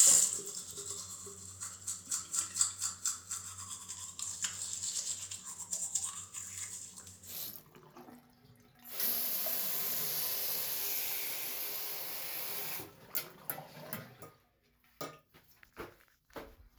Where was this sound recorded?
in a restroom